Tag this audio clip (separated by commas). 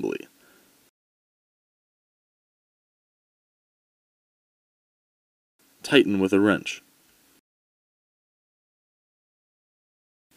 Speech